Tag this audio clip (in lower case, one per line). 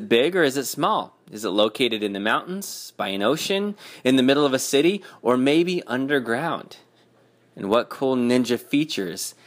speech